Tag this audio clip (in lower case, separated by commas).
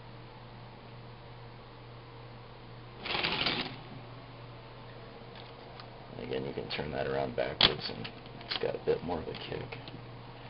speech